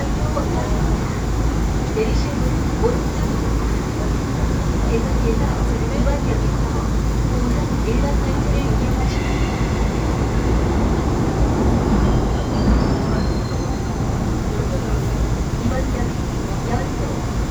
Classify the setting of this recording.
subway train